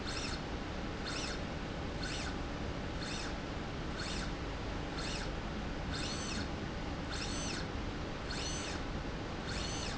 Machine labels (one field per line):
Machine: slide rail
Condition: normal